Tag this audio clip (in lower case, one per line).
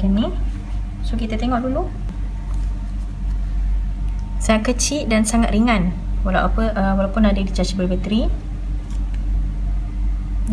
speech